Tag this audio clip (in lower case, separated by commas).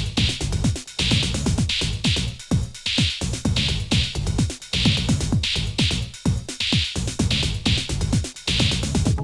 techno, electronic music, music